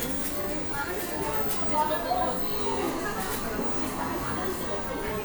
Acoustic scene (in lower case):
cafe